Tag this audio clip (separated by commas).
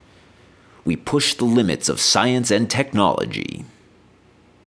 Human voice, Speech, Male speech